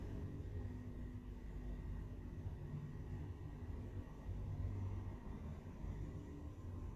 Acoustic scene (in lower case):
elevator